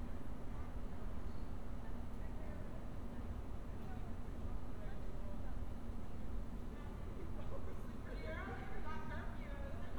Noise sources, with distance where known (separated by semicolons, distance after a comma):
person or small group talking, far